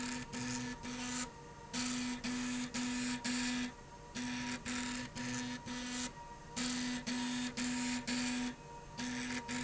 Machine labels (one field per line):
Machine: slide rail